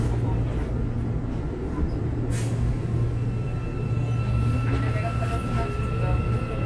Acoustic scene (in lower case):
subway train